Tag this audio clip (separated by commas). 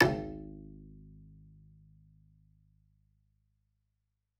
Bowed string instrument, Musical instrument, Music